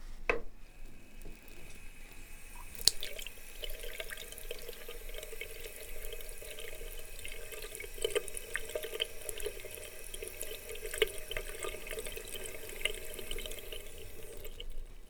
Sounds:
sink (filling or washing), home sounds

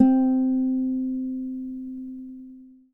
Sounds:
music, musical instrument, guitar, plucked string instrument

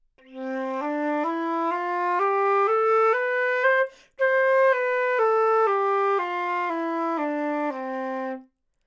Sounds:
music, musical instrument, wind instrument

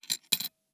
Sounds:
coin (dropping), domestic sounds

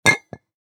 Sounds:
chink, glass

